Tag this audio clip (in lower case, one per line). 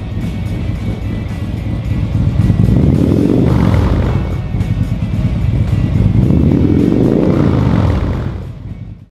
vehicle
music